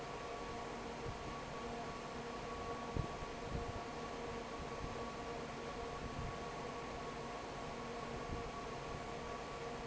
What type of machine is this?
fan